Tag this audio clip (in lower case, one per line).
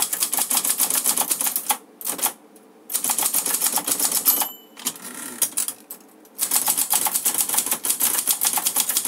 typing on typewriter